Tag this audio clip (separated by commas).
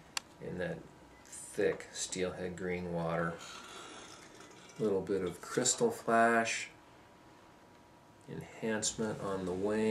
Speech